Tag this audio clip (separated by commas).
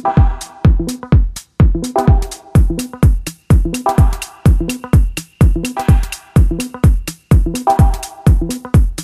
Music